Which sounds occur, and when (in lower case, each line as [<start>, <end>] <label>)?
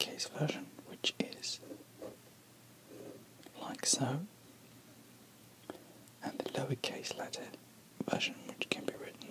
[0.00, 1.58] whispering
[0.00, 9.30] mechanisms
[1.56, 2.08] writing
[2.82, 3.16] writing
[3.37, 4.27] whispering
[5.55, 6.03] human sounds
[6.16, 7.56] whispering
[7.93, 9.30] whispering